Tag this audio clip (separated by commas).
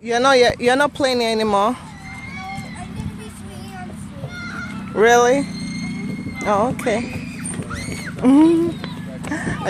outside, urban or man-made, Speech